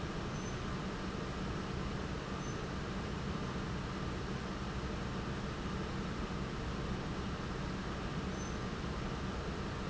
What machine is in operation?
pump